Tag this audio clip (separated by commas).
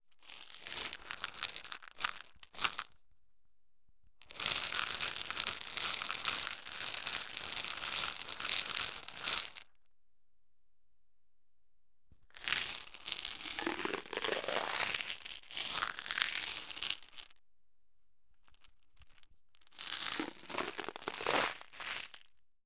Rattle